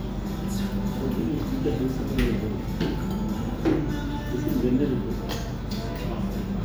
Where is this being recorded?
in a restaurant